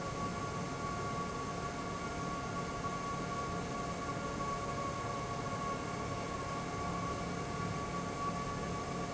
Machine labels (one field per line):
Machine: fan